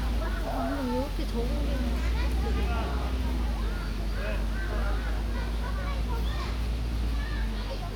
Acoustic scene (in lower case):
park